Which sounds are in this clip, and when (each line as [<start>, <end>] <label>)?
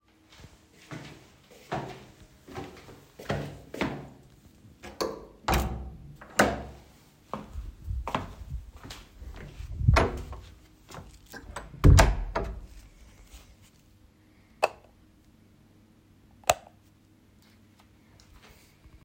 [0.85, 4.21] footsteps
[6.24, 6.88] door
[7.25, 9.15] footsteps
[10.80, 11.57] footsteps
[11.74, 12.63] door
[14.52, 14.85] light switch
[16.36, 16.77] light switch